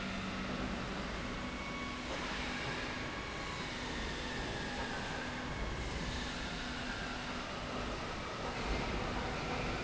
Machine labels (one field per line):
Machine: slide rail